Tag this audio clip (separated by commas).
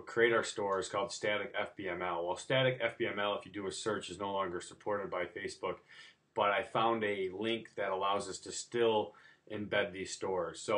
Speech